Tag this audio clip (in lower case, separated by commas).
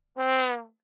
musical instrument, brass instrument, music